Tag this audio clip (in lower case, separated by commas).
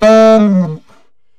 musical instrument, music, woodwind instrument